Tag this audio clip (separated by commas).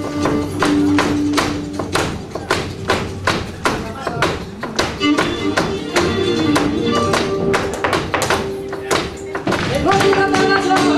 Music, Flamenco, Music of Latin America, Speech, Tap